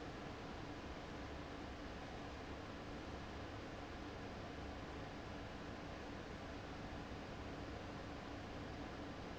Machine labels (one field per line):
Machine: fan